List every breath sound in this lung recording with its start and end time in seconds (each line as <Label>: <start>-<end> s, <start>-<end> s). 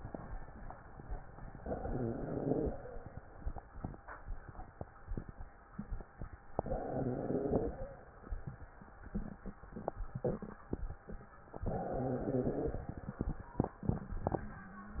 Inhalation: 1.61-2.71 s, 6.57-7.80 s, 11.65-12.88 s
Wheeze: 1.61-2.71 s, 6.57-7.80 s, 11.65-12.88 s